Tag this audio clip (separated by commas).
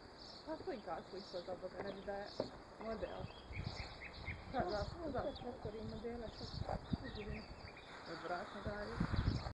Speech, Animal, outside, rural or natural